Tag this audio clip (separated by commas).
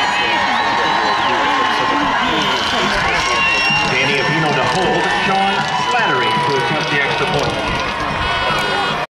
Music, Speech